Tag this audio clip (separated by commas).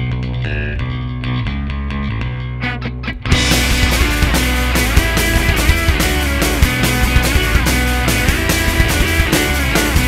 Music, Blues